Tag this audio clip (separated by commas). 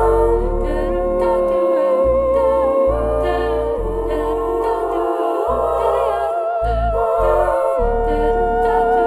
playing theremin